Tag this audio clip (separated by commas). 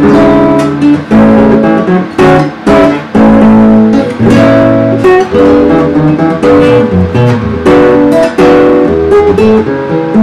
Guitar, Musical instrument, Plucked string instrument, Music